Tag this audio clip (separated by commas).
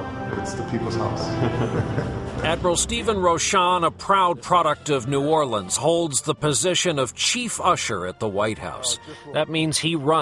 Music, Speech